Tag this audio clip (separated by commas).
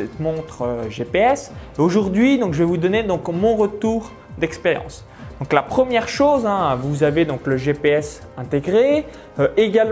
Speech, Music